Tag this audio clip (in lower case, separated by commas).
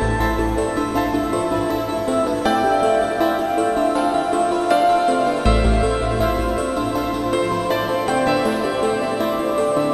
harpsichord